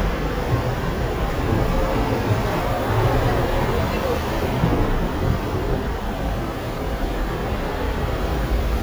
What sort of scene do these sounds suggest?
bus